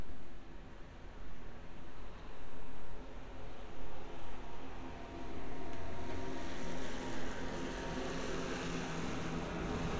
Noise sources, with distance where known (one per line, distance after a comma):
unidentified powered saw